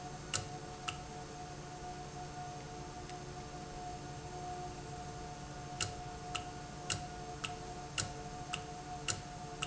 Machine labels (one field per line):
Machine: valve